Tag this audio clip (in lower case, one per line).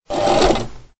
mechanisms
engine